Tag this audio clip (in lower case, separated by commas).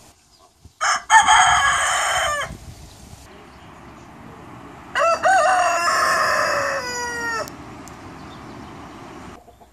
chicken crowing